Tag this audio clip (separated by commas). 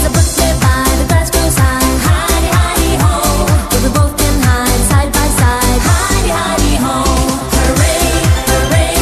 Music